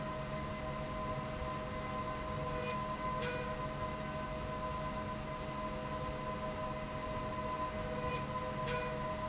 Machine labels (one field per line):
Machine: slide rail